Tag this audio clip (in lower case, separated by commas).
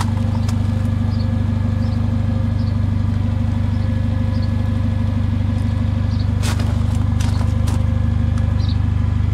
vehicle